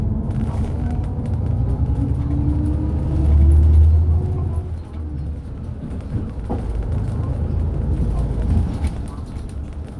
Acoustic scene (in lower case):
bus